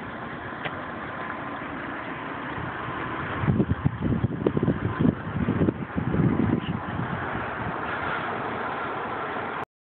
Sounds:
Vehicle, Car

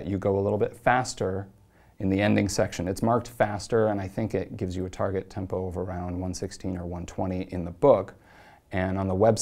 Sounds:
Speech

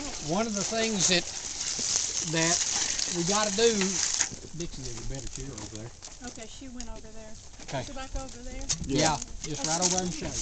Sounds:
Speech

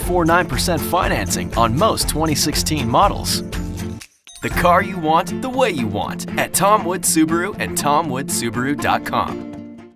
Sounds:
Music, Speech

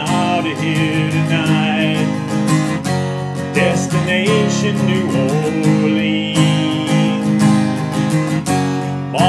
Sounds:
Guitar, Musical instrument, Music

